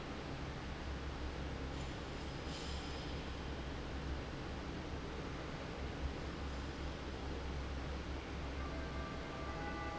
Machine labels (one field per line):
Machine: fan